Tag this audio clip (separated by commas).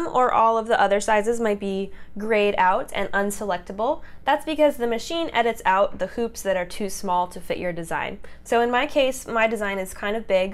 Speech